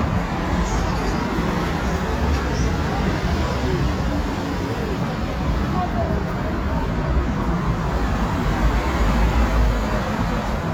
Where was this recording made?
on a street